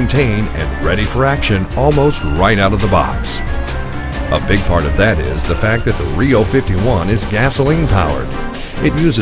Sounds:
speech
music

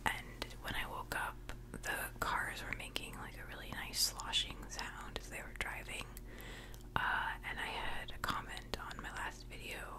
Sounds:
people whispering
speech
whispering

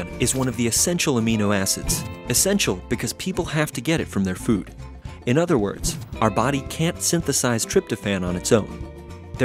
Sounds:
speech
music

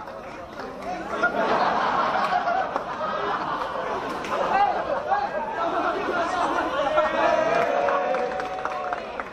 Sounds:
speech

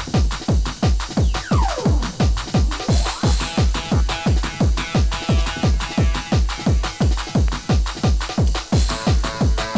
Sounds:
music

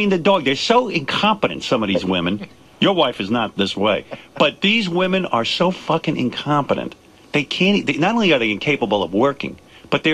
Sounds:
speech

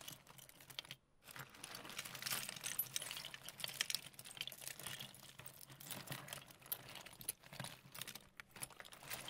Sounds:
sound effect
keys jangling

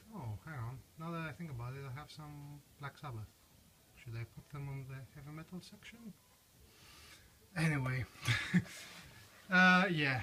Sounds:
inside a small room
speech

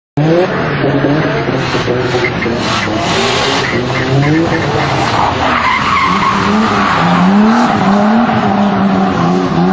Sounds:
car passing by

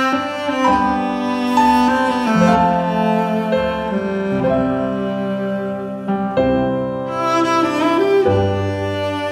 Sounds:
double bass
playing cello
cello
bowed string instrument

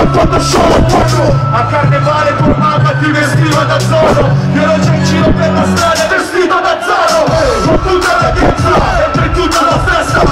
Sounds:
music

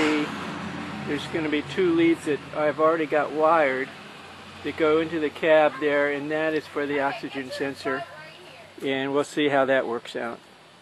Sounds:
motor vehicle (road)
vehicle
engine
car
speech

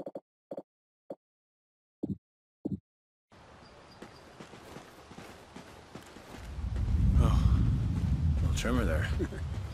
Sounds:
outside, rural or natural
speech

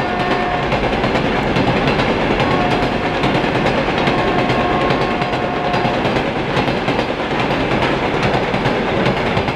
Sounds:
train whistling

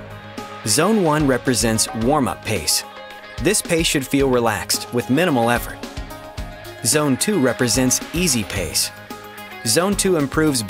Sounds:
speech
music

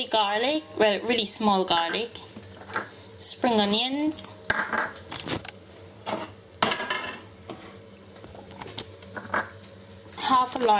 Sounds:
speech

